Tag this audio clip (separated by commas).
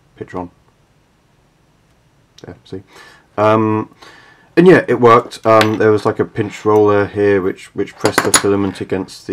Speech